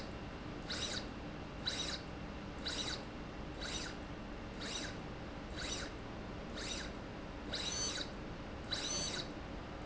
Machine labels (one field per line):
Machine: slide rail